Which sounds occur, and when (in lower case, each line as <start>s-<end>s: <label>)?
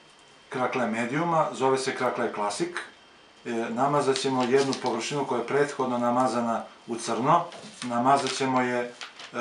0.0s-9.4s: mechanisms
0.5s-2.8s: man speaking
3.4s-6.6s: man speaking
4.1s-4.8s: crumpling
6.9s-7.5s: man speaking
7.5s-8.4s: crumpling
7.8s-9.0s: man speaking
8.9s-9.3s: crumpling